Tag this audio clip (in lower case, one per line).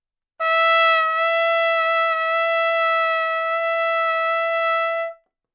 musical instrument
music
trumpet
brass instrument